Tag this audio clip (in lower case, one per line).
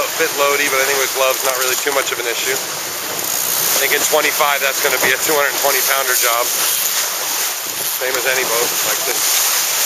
speech
sailing ship